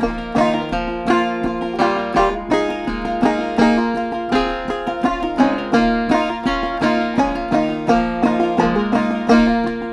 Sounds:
music
zither

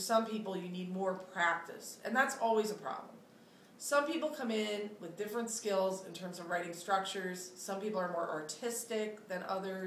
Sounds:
speech

